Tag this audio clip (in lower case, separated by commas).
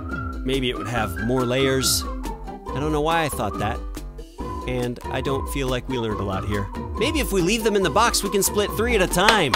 speech, music